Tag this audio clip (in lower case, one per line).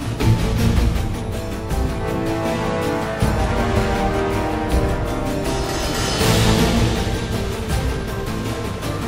music
soundtrack music